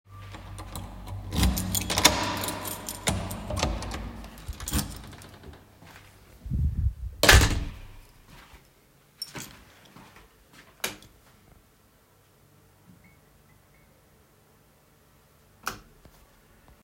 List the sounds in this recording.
keys, door, footsteps, light switch